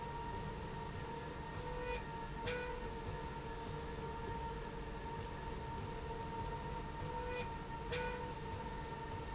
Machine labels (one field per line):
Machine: slide rail